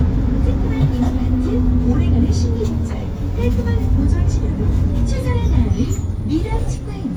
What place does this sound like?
bus